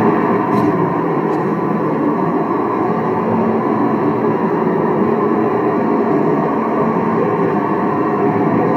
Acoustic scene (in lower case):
car